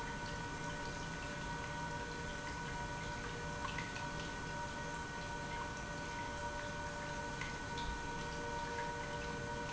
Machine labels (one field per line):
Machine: pump